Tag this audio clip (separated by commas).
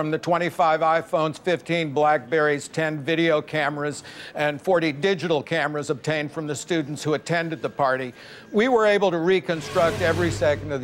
Speech